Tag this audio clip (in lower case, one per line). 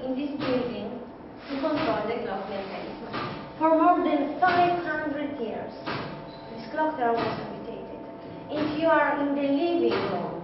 speech